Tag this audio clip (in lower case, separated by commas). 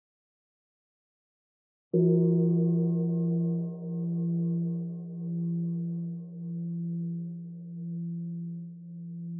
gong, chirp tone